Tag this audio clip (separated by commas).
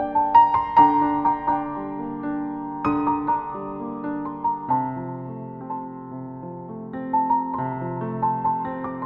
New-age music, Music